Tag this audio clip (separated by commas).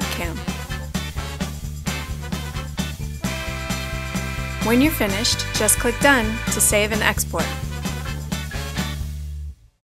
Music, Speech